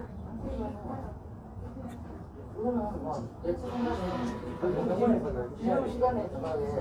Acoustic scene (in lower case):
crowded indoor space